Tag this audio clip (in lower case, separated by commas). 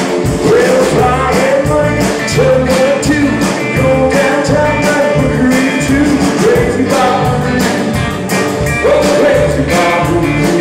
music, rock and roll